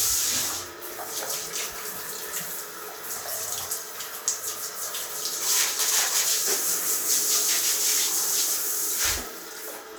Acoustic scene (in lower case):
restroom